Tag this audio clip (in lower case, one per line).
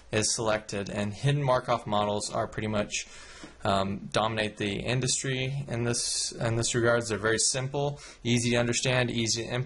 man speaking
speech